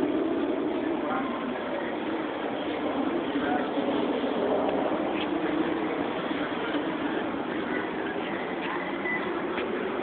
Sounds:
Speech

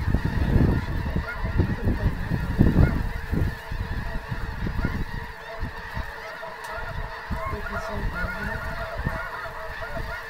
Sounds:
Speech

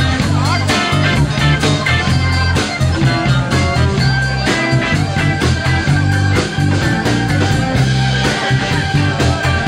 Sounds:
Speech, Orchestra, Music

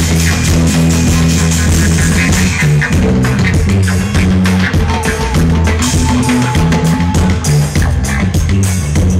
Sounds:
Music, Crowd, Musical instrument

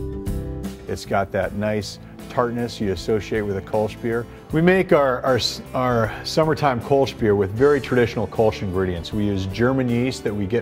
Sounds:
Speech, Music

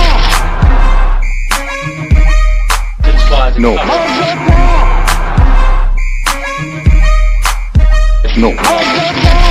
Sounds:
Speech, Music

